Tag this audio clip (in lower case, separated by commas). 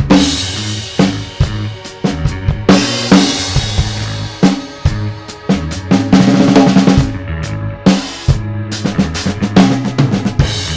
hi-hat, bass drum, musical instrument, snare drum, rock music, drum, progressive rock, music, drum kit, cymbal